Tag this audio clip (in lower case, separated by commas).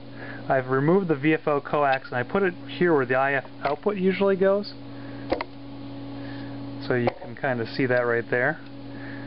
speech